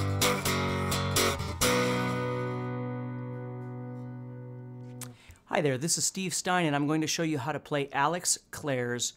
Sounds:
strum, guitar, music, musical instrument, plucked string instrument, speech

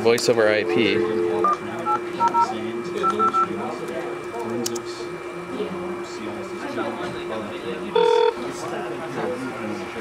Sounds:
speech

